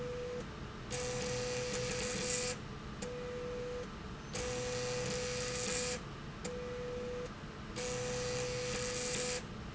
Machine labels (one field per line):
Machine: slide rail